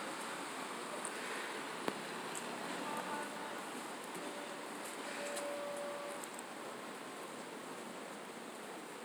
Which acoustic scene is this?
residential area